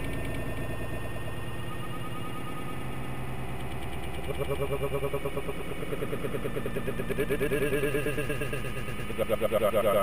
A motor vehicle engine is running slowly and vibrating softly